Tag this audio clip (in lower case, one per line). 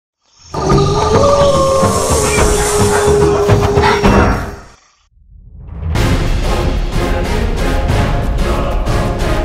music